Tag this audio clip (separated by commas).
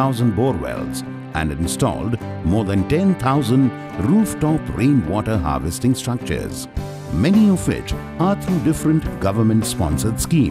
Speech, Music